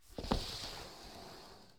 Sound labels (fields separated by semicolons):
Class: furniture moving; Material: wooden; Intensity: medium